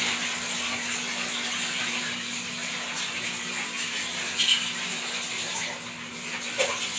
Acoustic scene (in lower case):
restroom